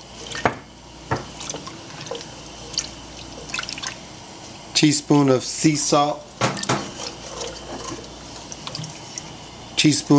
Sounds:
inside a small room, Speech, Water, Water tap, Drip

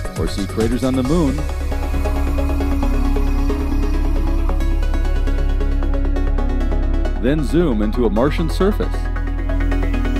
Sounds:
Speech, Music

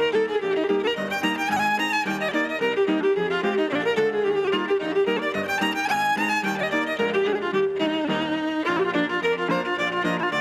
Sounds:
Musical instrument, Bowed string instrument, Music

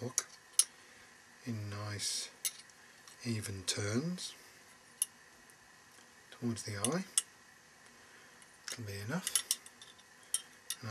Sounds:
Speech

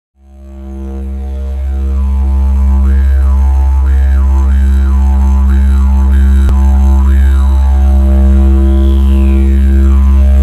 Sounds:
playing didgeridoo

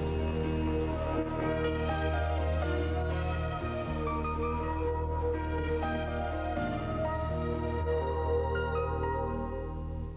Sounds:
Music

